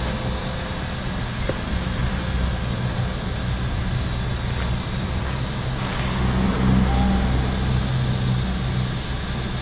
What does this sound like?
Steam is hissing out of something